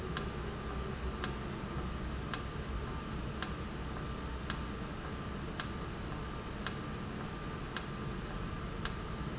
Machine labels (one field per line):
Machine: valve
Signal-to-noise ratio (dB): -6 dB